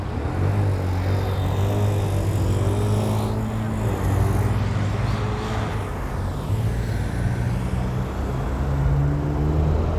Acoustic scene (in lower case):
street